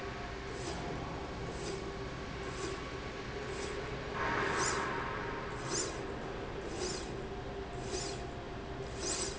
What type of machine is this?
slide rail